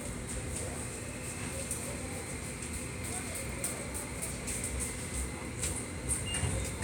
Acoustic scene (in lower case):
subway station